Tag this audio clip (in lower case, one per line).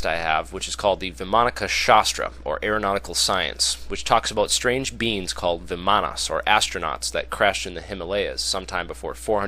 speech